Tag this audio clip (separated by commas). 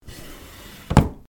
home sounds, Drawer open or close